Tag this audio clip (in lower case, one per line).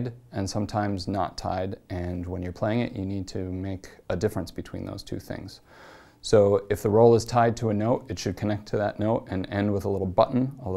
speech